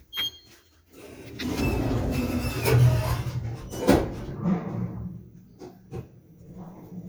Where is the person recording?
in an elevator